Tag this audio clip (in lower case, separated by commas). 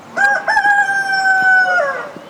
fowl, livestock, rooster, animal